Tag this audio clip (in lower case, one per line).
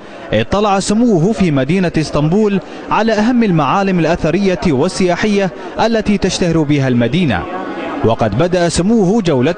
speech